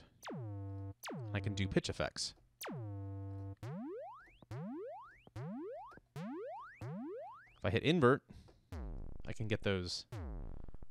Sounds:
music, speech

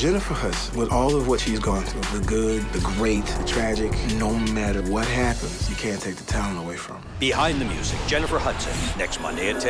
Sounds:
speech, music

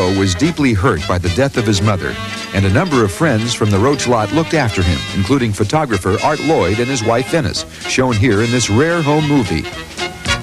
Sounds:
speech, music

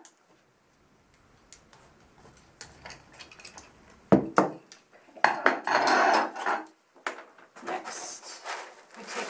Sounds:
speech

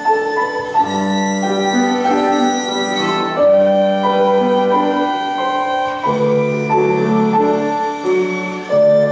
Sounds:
musical instrument, fiddle, music

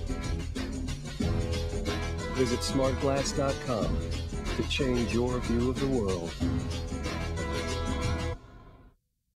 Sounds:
speech, music

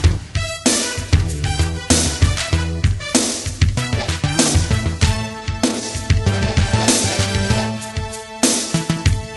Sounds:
music

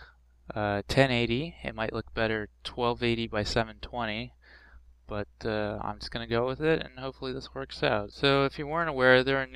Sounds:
speech

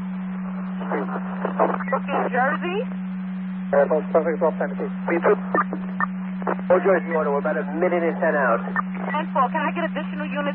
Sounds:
police radio chatter

